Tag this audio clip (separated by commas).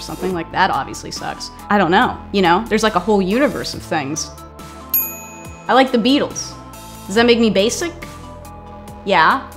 Music, Speech